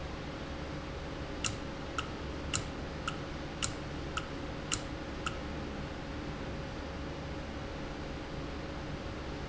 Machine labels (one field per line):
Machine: valve